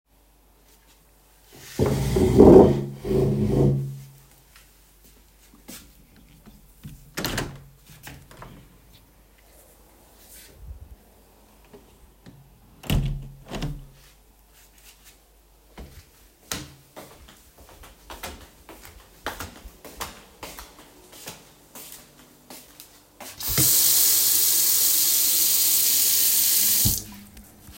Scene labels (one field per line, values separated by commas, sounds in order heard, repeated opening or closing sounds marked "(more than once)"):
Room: bedroom, kitchen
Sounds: window (more than once), footsteps, running water